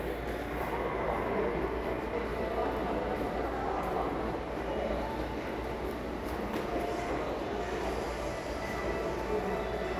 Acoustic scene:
subway station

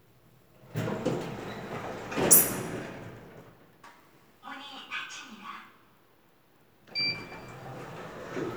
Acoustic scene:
elevator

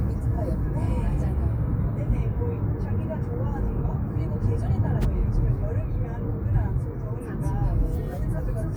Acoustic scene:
car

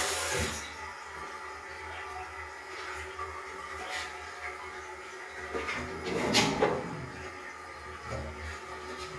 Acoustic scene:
restroom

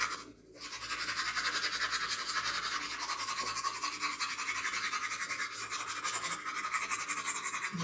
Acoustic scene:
restroom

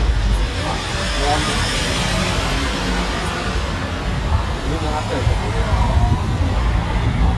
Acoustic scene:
street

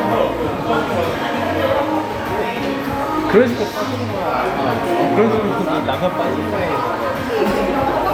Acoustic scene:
crowded indoor space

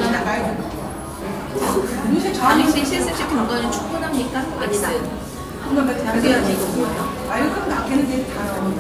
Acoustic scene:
cafe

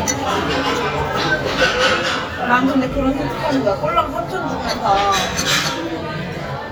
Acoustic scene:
crowded indoor space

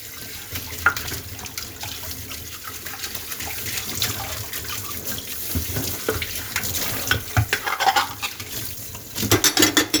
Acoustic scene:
kitchen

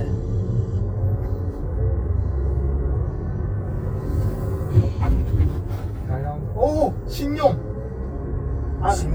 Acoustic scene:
car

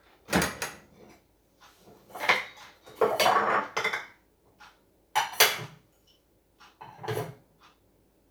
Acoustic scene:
kitchen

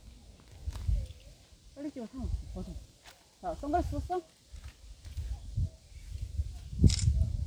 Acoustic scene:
park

